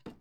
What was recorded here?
wooden cupboard closing